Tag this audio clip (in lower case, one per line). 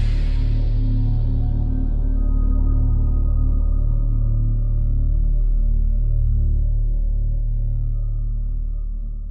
music